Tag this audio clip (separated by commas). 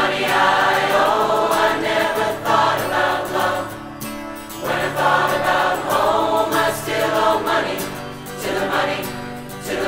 singing choir